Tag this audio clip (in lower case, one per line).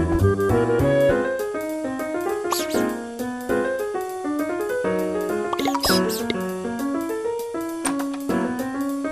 music